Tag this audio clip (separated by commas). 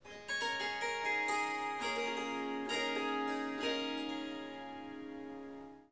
Harp, Musical instrument, Music